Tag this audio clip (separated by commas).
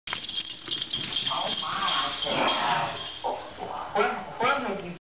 Speech